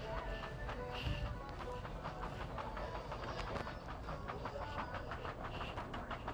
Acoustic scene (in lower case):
crowded indoor space